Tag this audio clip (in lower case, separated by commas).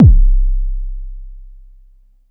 music, percussion, musical instrument, drum, bass drum